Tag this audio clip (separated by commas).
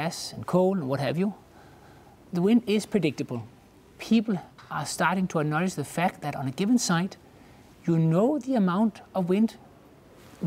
Speech